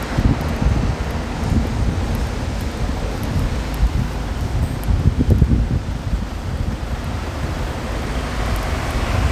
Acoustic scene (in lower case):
street